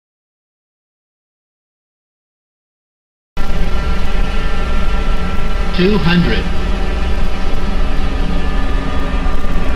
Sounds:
aircraft, vehicle

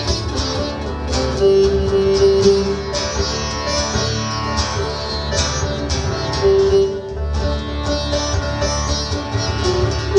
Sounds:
bowed string instrument, music, sitar

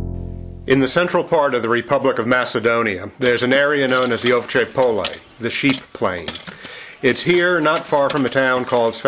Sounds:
speech, music

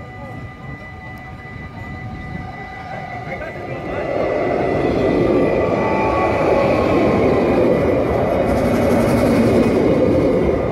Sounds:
vehicle, speech, rail transport, train

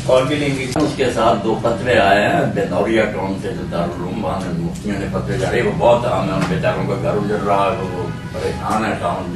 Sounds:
speech

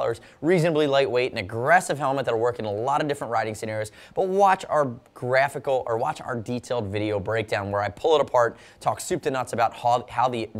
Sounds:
speech

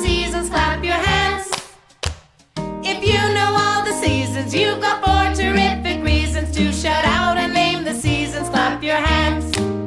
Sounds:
child singing

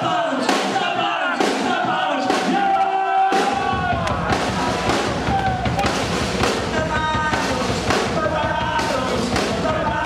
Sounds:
music

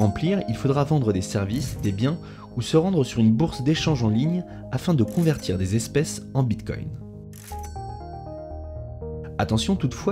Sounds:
music, speech

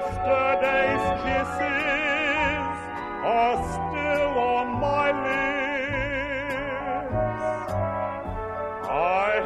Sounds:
music

